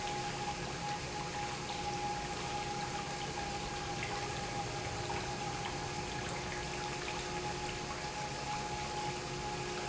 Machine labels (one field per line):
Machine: pump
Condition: normal